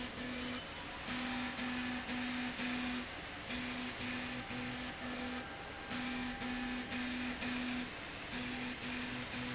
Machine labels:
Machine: slide rail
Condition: abnormal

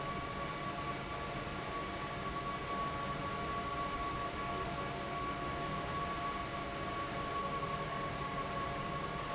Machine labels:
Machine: fan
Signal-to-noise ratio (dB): -6 dB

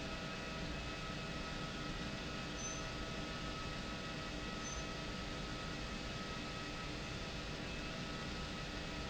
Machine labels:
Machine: pump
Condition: abnormal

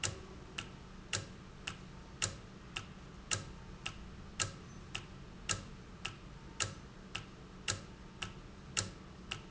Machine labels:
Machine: valve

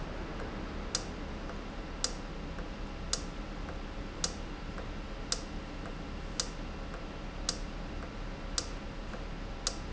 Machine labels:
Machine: valve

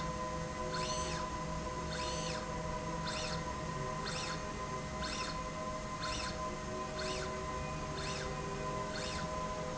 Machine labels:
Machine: slide rail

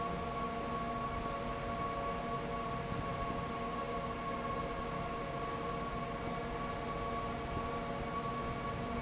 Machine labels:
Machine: fan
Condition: abnormal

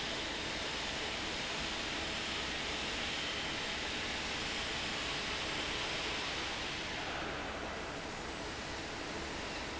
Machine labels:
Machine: fan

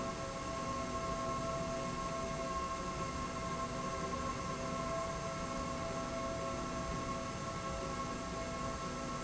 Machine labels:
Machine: slide rail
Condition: normal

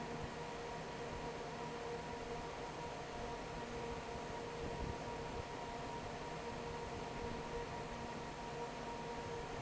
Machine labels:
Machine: fan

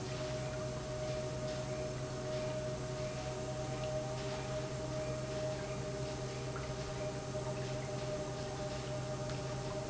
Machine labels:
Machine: pump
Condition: normal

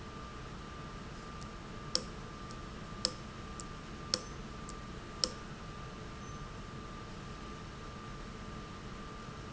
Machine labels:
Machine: valve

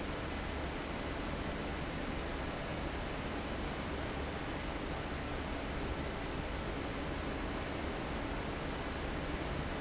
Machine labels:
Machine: fan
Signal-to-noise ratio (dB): -6 dB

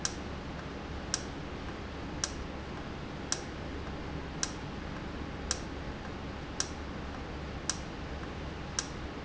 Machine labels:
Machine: valve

